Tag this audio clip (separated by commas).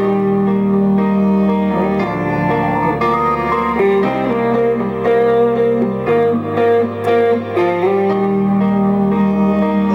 Strum, Musical instrument, Guitar, Music, Plucked string instrument